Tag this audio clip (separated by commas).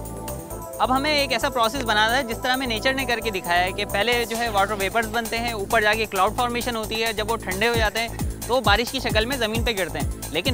Music, Speech